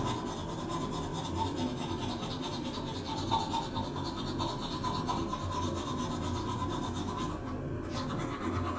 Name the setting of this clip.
restroom